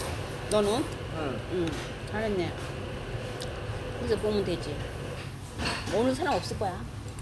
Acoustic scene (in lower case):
restaurant